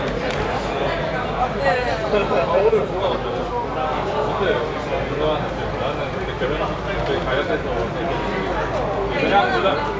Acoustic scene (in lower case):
crowded indoor space